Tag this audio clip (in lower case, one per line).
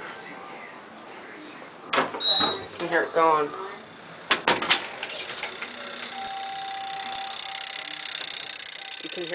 doorbell
speech